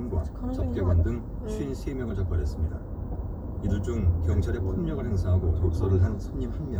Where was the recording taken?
in a car